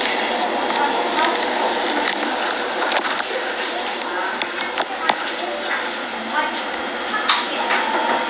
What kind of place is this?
crowded indoor space